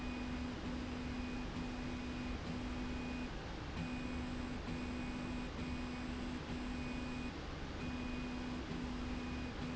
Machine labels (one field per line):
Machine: slide rail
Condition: normal